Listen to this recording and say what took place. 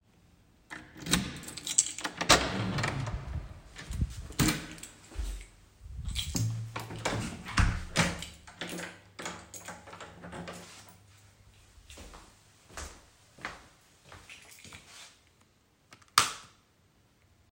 I opend the door with my keys, I closed the door and lock it with my keys and I turn on the light.